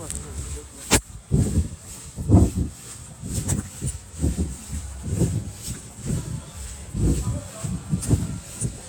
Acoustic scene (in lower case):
residential area